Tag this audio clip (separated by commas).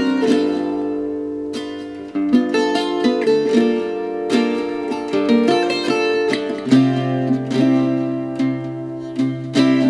Music